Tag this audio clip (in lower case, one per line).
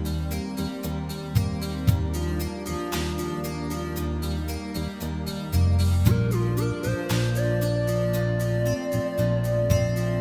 music